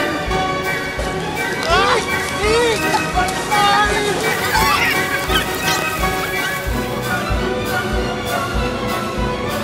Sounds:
speech
music

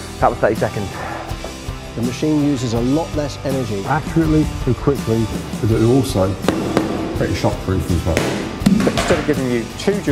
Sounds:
music
speech

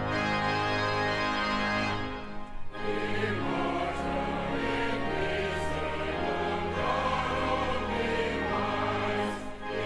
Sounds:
choir
music

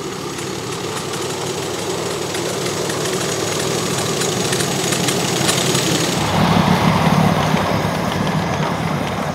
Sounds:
outside, rural or natural
rattle
vehicle
train
engine
rail transport

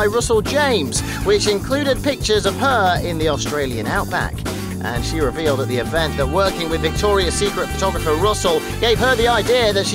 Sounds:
music
speech

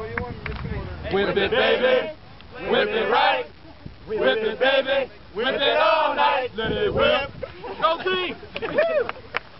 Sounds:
speech

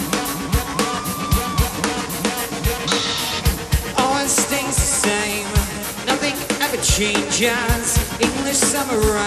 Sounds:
music

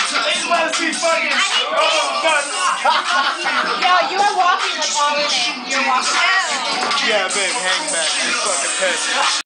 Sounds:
music
speech

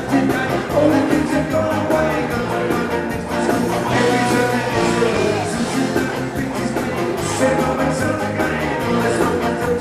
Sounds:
music

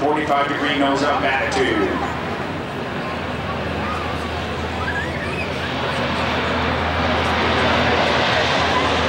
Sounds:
fixed-wing aircraft
aircraft

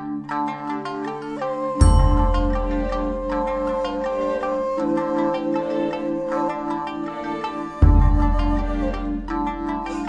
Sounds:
music

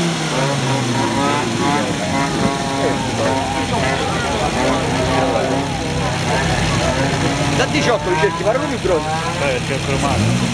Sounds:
speech

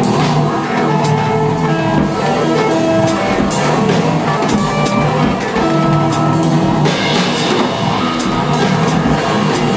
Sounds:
guitar
rock music
music
musical instrument
drum kit
drum

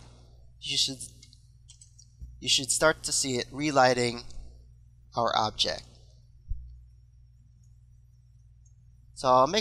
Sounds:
speech

